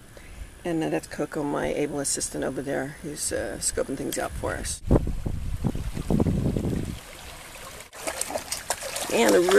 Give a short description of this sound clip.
Woman speaking followed by wind and water splashing